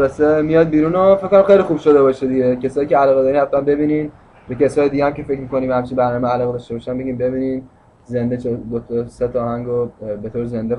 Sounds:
Speech

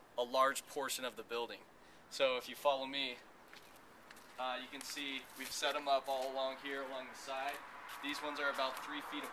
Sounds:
Speech

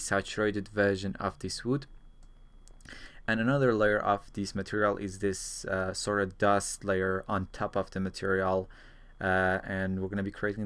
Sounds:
Speech

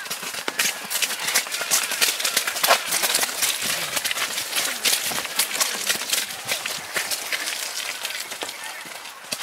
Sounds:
Speech, people running, Run, outside, rural or natural

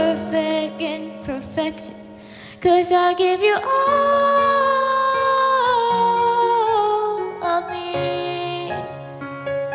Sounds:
child singing

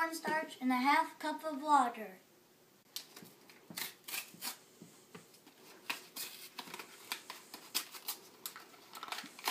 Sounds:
Squish, Speech

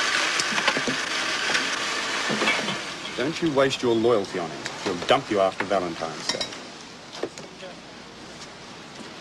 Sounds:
Speech

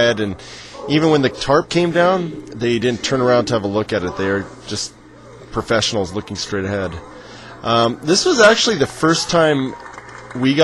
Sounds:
Speech

